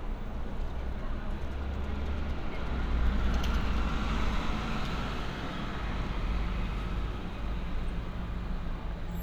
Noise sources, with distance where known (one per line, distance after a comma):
engine of unclear size, near